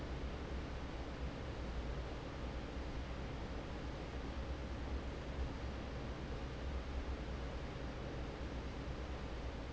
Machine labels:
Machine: fan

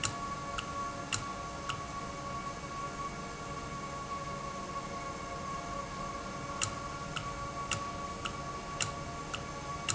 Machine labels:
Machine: valve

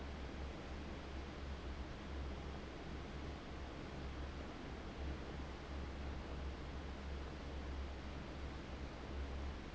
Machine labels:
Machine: fan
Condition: abnormal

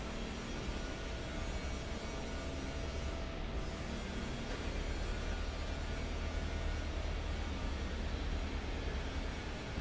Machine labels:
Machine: fan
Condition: normal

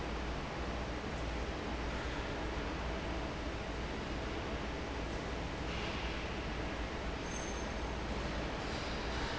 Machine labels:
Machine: fan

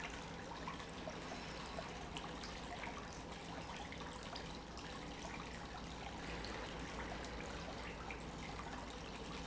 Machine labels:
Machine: pump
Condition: normal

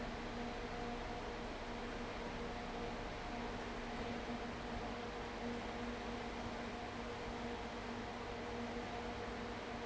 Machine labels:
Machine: fan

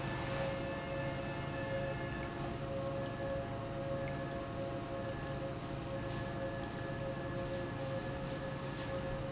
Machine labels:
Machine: pump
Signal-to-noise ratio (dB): -6 dB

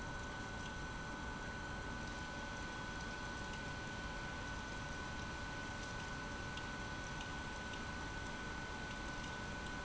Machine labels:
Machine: pump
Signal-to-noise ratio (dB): 6 dB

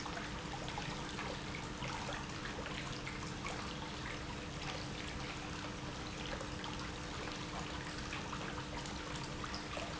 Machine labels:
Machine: pump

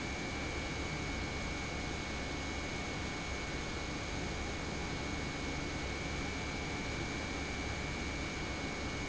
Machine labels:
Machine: pump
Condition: normal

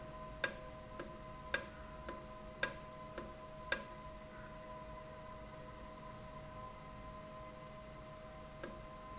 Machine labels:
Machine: valve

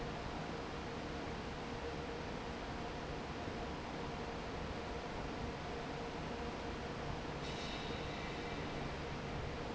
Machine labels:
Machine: fan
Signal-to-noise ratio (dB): 0 dB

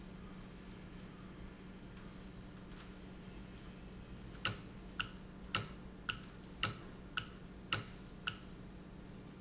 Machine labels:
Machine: valve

